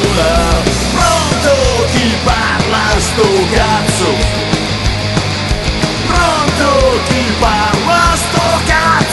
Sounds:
Music, Hip hop music, Rock music, Punk rock

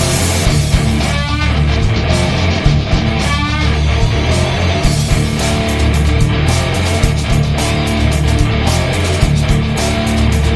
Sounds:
Musical instrument, Guitar, Electric guitar, Bass guitar, Plucked string instrument, Music

